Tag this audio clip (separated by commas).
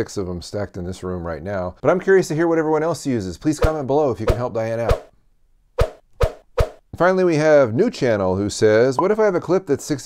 inside a small room, Speech